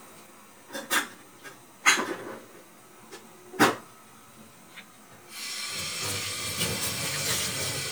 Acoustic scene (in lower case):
kitchen